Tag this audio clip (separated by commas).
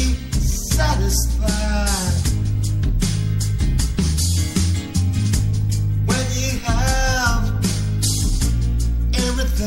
Music